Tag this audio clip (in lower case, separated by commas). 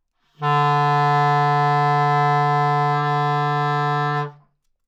musical instrument, wind instrument, music